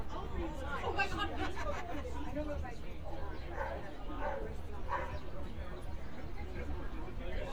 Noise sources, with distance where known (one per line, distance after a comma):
person or small group talking
dog barking or whining